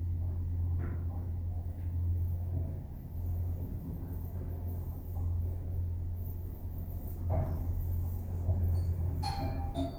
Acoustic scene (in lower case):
elevator